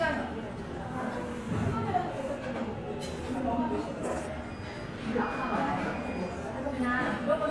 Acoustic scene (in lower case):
restaurant